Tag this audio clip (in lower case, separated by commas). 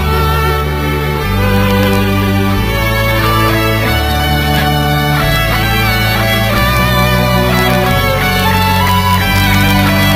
music